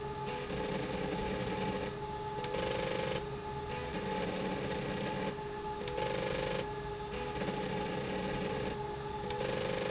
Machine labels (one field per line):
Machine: slide rail